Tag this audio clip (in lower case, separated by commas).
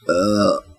burping, human voice